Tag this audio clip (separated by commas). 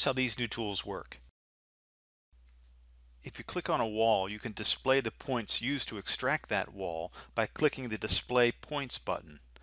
Speech